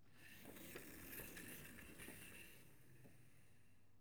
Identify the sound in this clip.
furniture moving